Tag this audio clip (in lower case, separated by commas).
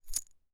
musical instrument, rattle (instrument), music, percussion